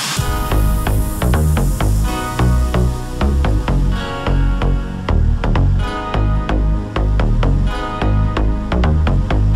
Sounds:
electronica, dance music, music, electronic dance music

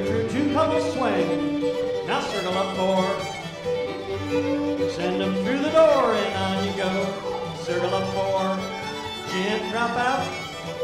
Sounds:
music

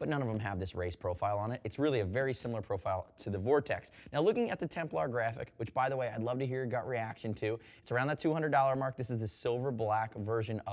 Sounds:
speech

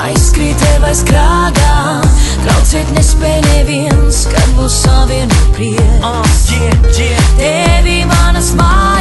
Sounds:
music

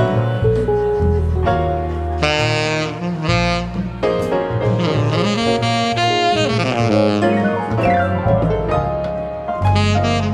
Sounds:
playing saxophone, saxophone, brass instrument

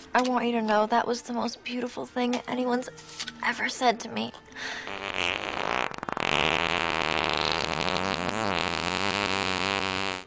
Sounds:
fart, people farting, speech

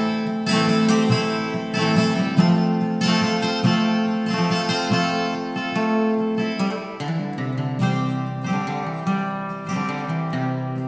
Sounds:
music

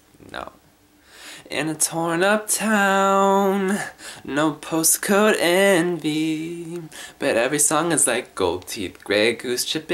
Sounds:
male singing

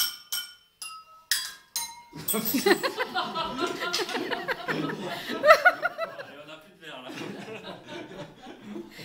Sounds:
speech, clink

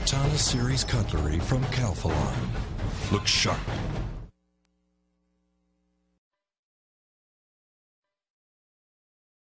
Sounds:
speech, music

